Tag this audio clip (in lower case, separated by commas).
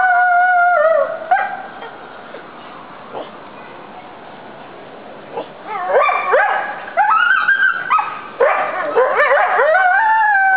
coyote howling